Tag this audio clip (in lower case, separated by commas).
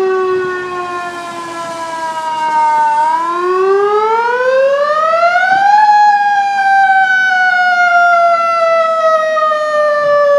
car, fire truck (siren), motor vehicle (road), vehicle